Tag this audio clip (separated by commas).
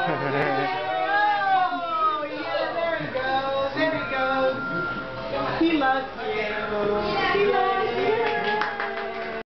Music, Speech